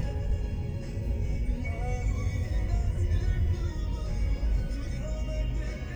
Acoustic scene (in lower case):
car